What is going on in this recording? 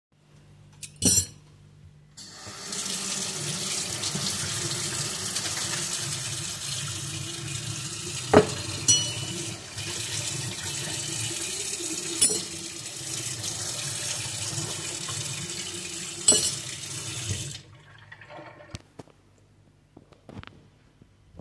I placed some dirty cutlery next to my sink then turned on the water. I then cleaned the cutlery and placed each piece of cutlery next to my sink again. After the last piece of cutlery, I turned off the water again.